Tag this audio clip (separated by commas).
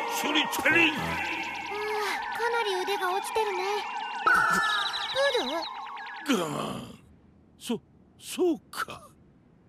Sigh